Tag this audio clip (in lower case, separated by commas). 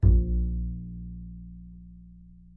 musical instrument, music, bowed string instrument